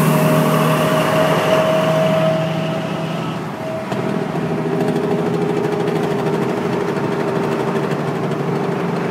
Truck along with motorcycle speeding on a highway